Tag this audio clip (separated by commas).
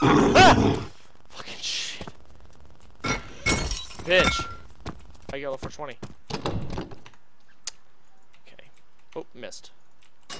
Speech, inside a large room or hall